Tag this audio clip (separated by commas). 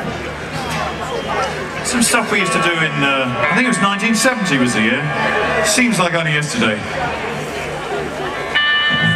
Speech, Music